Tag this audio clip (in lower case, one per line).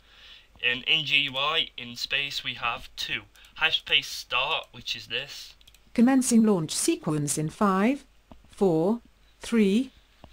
narration